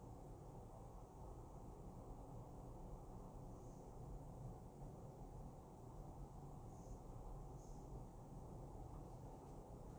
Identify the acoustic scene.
elevator